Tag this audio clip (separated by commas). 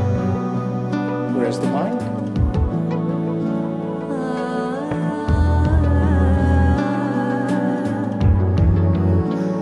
Music, Speech